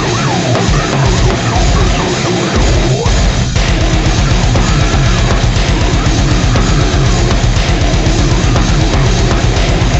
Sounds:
music, heavy metal

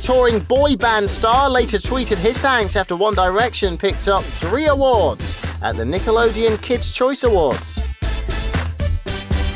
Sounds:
speech, music

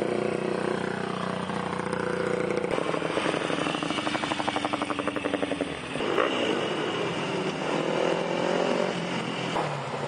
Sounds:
driving motorcycle, vehicle, motorcycle

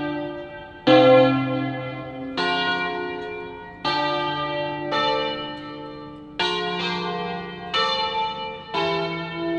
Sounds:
church bell ringing, church bell

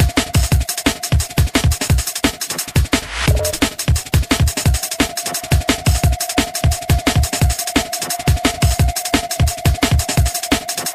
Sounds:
background music, music

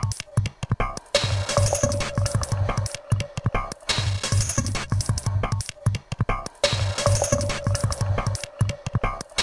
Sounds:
music

